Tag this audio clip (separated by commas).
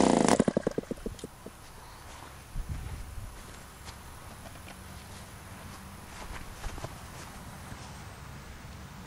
Engine